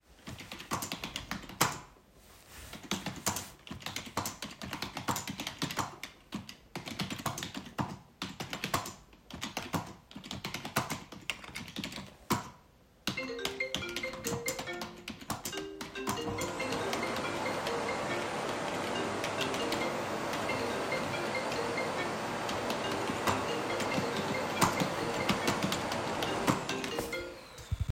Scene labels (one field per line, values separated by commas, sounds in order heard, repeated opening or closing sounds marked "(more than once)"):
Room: office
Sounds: keyboard typing, phone ringing, vacuum cleaner